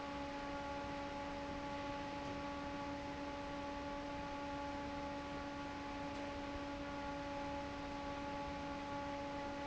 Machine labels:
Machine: fan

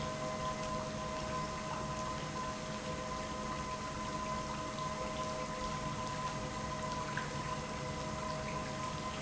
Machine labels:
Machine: pump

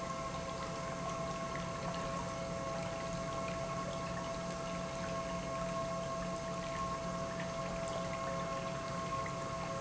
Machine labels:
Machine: pump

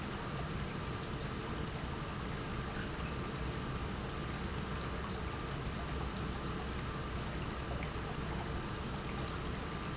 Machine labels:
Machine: pump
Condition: normal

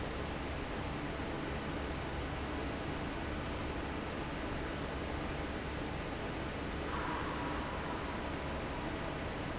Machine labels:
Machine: fan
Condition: normal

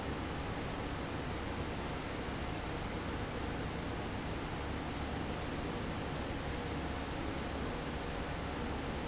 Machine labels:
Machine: fan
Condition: abnormal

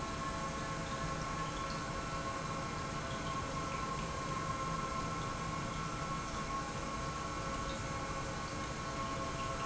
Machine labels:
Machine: pump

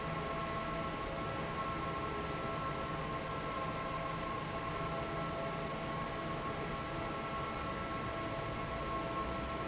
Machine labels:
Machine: fan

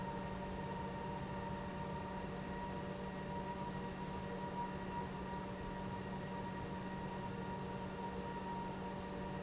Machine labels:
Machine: pump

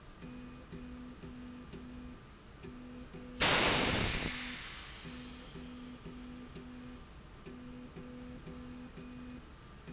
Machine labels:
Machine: slide rail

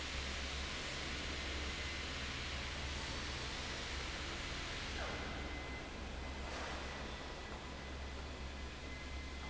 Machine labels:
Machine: fan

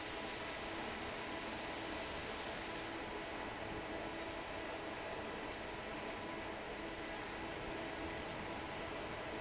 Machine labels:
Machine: fan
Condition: normal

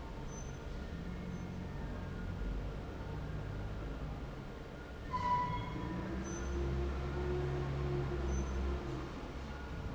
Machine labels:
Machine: fan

